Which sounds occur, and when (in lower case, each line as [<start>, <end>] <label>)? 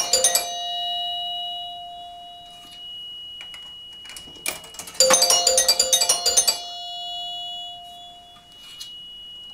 [0.00, 9.53] mechanisms
[0.00, 9.53] music
[2.39, 2.77] generic impact sounds
[3.34, 3.66] generic impact sounds
[3.86, 4.93] generic impact sounds
[7.76, 7.95] surface contact
[8.28, 8.58] generic impact sounds
[8.55, 8.93] surface contact